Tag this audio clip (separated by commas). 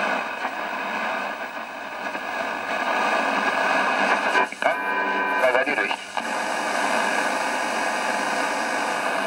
Radio, Speech